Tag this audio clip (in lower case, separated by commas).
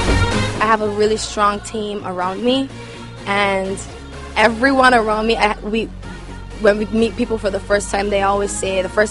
music, speech